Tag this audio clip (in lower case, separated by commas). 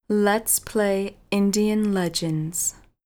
human voice, female speech, speech